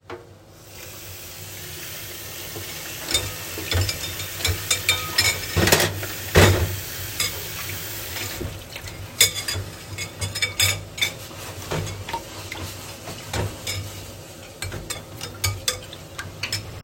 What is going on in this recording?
start the waterflow, wash the dishes, stop water